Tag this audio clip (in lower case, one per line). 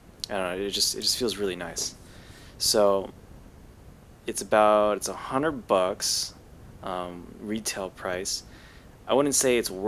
speech